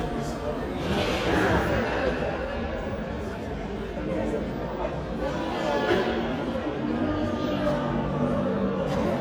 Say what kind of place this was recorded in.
crowded indoor space